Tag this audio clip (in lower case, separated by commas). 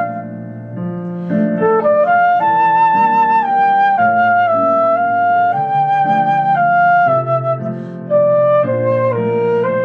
wind instrument, playing flute, flute, music